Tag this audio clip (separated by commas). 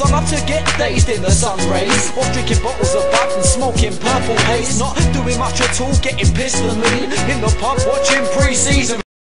Reggae